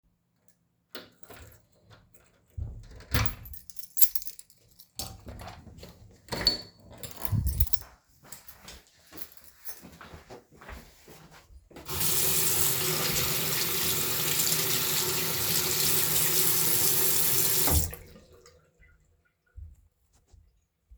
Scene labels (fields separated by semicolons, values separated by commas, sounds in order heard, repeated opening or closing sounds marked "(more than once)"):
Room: hallway, bathroom; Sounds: door (more than once), keys, footsteps, running water